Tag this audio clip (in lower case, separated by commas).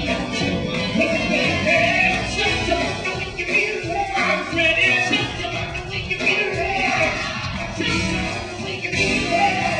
rock and roll, music, singing